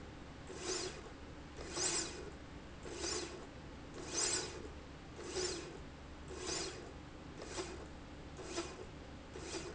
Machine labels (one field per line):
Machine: slide rail